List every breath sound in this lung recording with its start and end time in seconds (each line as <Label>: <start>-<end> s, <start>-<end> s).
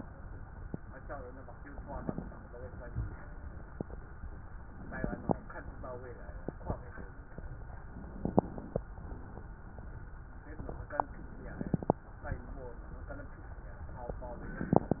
Inhalation: 1.71-2.39 s, 4.78-5.47 s, 8.14-8.82 s, 11.33-12.01 s
Crackles: 1.71-2.39 s, 4.78-5.47 s, 8.14-8.82 s, 11.33-12.01 s